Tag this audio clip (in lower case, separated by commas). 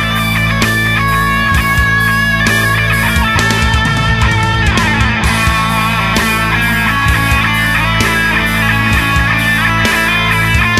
music, progressive rock